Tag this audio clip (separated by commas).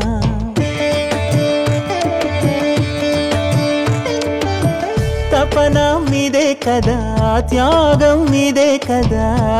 Carnatic music, Singing, Music